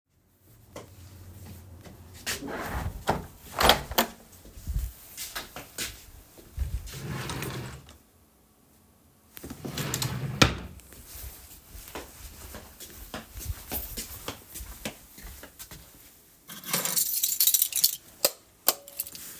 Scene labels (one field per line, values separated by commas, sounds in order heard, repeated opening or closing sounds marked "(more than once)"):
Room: living room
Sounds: window, footsteps, wardrobe or drawer (more than once), keys, light switch